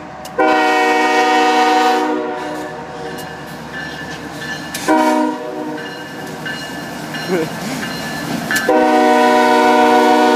The train whistle sound several times as a train is traveling down the tracks